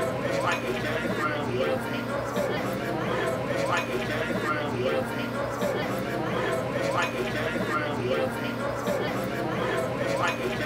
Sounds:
Speech

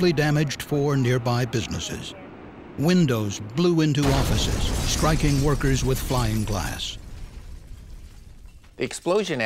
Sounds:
Speech

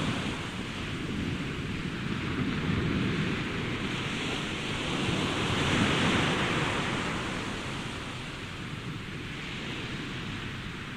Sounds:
Waves, Ocean, ocean burbling

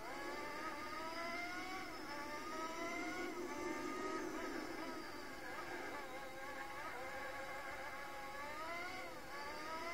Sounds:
Car, auto racing

